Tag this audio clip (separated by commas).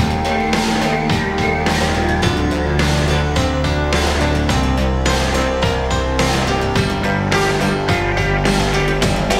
Music